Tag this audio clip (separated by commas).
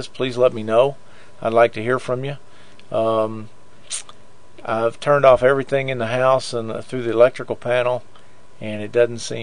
Speech